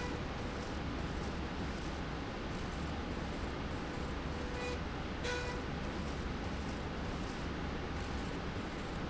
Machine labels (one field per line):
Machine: slide rail